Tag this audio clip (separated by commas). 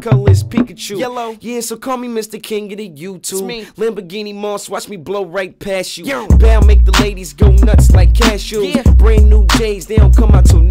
Music